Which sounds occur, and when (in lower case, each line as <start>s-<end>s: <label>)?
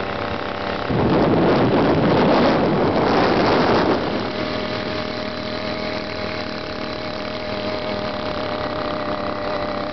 0.0s-9.9s: motorcycle
0.0s-9.9s: wind noise (microphone)